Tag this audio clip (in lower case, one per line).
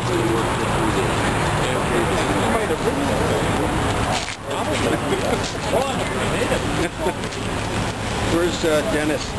vehicle
bus
speech
motor vehicle (road)